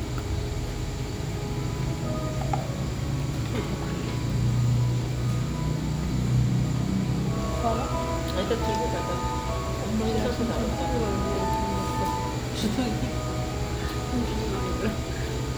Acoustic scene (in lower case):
cafe